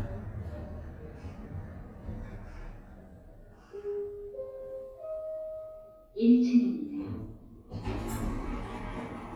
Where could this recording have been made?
in an elevator